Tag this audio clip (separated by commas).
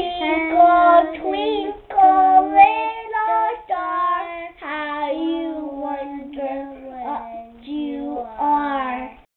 Child singing